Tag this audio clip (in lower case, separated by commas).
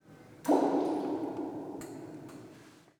water